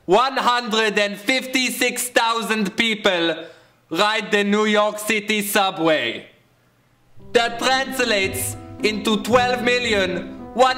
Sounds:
Male speech, Narration, Speech, Music

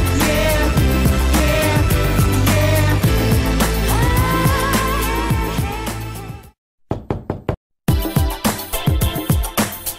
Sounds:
Music

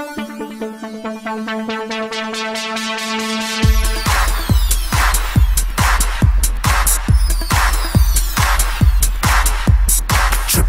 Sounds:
Techno, Trance music, Music

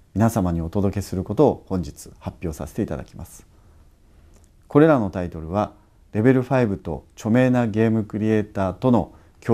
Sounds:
Speech

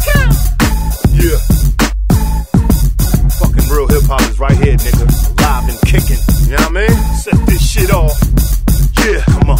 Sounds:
Music

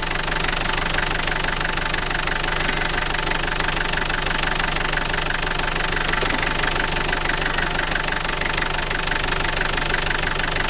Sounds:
Engine, Medium engine (mid frequency)

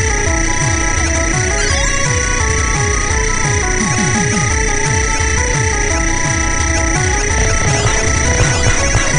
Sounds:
Music

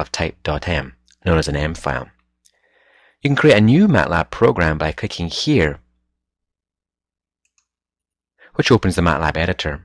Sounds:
Speech

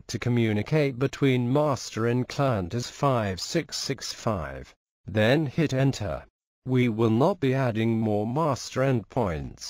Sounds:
Speech

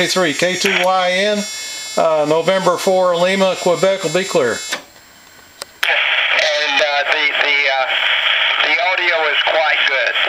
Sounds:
Speech, Radio

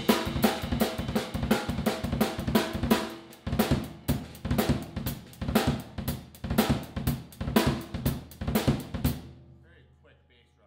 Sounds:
Drum roll, Drum kit, Drum, Bass drum, Percussion, Snare drum, Rimshot

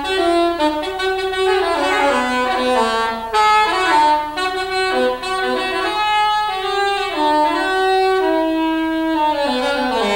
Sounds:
Jazz, Music

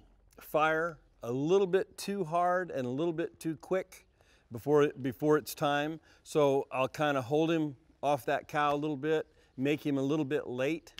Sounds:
Speech

